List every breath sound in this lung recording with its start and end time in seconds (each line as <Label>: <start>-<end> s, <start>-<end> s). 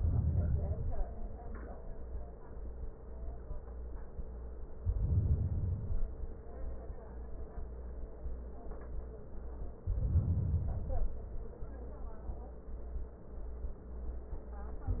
Inhalation: 0.00-1.12 s, 4.83-6.06 s, 9.88-11.22 s